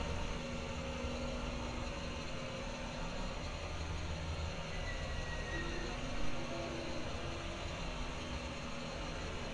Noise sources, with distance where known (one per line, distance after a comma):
large-sounding engine, near